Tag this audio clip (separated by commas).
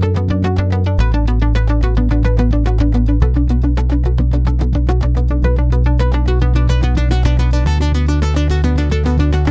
Music, Electronic music